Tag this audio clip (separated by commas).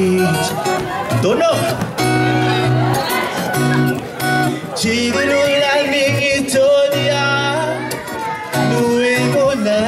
Music, Speech